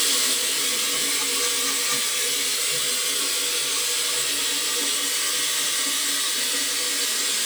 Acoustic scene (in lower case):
restroom